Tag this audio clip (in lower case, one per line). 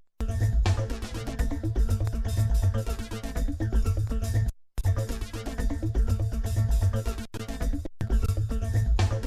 music